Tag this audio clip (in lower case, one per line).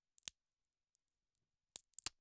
crack